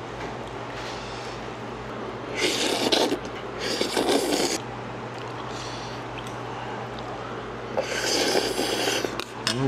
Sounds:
people eating noodle

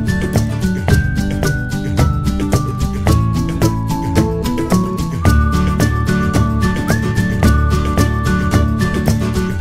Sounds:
Music

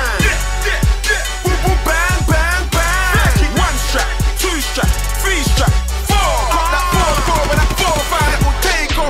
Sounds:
Music

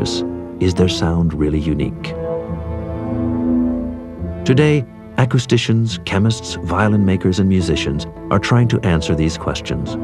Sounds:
Violin, Music, Speech, Musical instrument

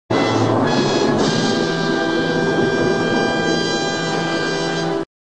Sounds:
Music

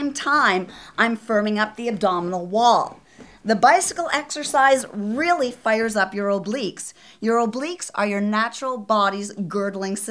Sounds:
Speech

